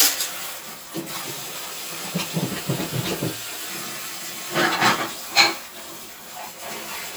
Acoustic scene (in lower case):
kitchen